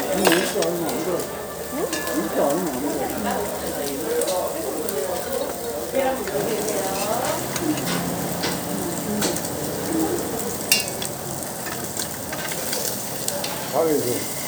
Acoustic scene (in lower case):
restaurant